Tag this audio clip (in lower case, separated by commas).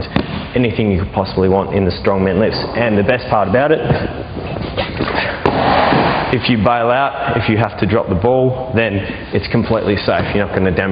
speech